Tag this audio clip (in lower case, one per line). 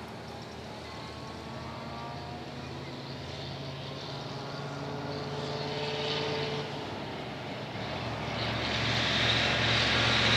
truck
vehicle